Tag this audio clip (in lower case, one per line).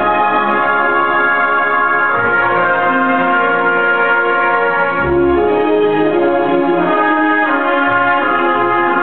music